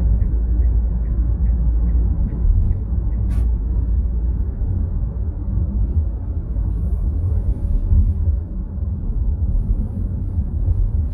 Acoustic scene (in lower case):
car